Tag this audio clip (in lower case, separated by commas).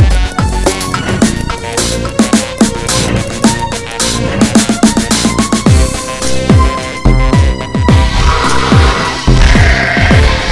music